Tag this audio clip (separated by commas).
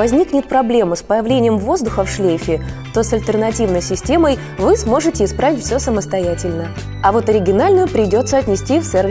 Music, Speech